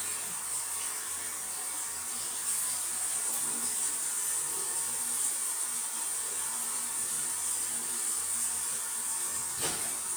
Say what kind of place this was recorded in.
restroom